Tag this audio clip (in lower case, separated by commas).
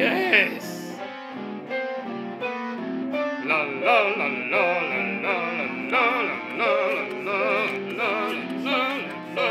musical instrument, acoustic guitar, speech, guitar, music, plucked string instrument, strum